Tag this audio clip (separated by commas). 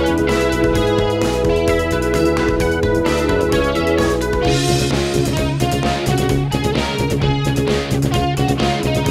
Guitar, Plucked string instrument, Strum, Musical instrument, Rhythm and blues, Music